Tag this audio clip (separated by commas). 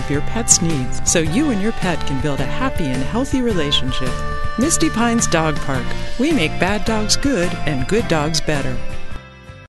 Speech, Music